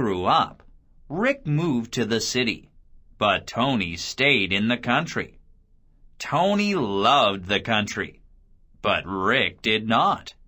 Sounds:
Speech

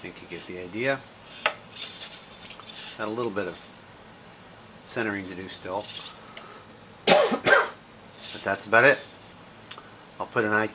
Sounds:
Mechanisms

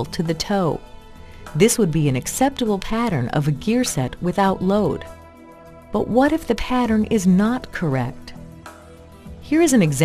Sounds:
Speech, Music

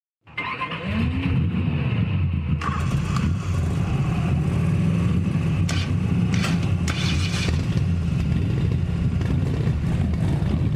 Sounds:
Motorcycle

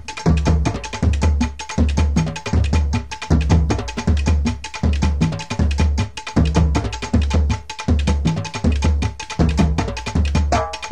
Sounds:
Music

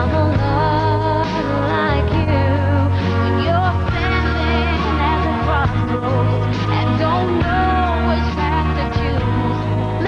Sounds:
Singing, Pop music

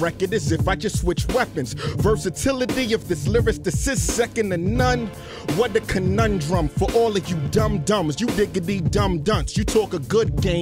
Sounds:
Music

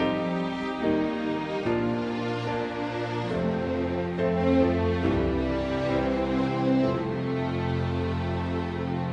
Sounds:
Music

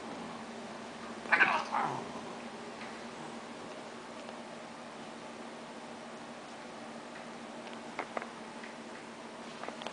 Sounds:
Domestic animals, inside a small room, Cat, Animal, Caterwaul

